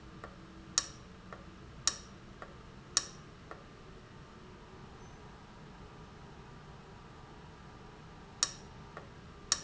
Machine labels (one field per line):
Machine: valve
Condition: abnormal